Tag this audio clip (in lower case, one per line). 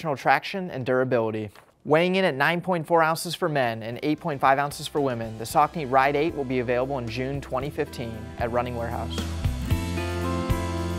speech
music